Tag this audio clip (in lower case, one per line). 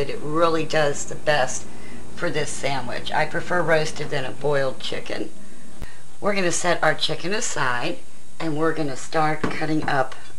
speech